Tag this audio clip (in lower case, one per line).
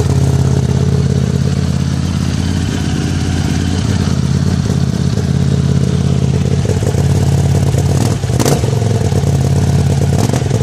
motorcycle